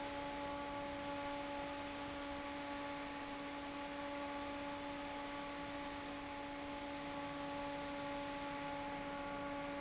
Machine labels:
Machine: fan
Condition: normal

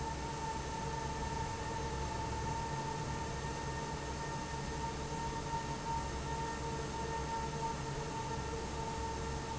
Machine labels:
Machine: fan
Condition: normal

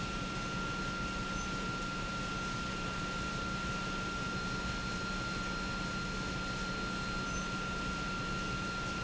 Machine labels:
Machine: pump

